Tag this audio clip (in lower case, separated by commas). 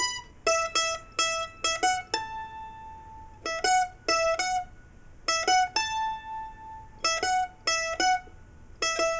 musical instrument, ukulele, music